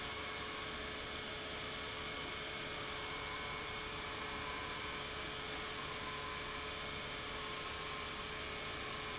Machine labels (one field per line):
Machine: pump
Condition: normal